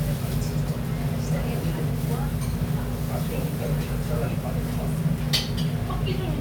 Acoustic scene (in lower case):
restaurant